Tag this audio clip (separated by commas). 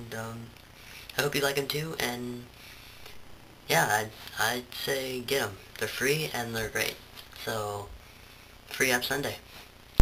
Speech